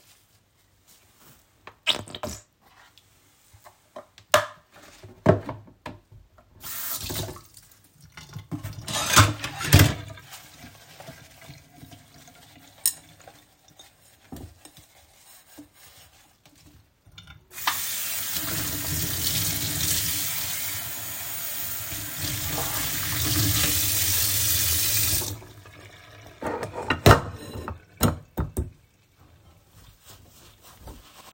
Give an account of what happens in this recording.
I squeezed the soap bottle to put soap on the loofah. Then I opened the tap to wet the loofah and closed it again. I took a dish from a pile of dishes and started cleaning it with the loofah. After that, I reopened the tap to rinse the soap off the dish. Finally, I placed the dish on the table and dried my hands with a towel.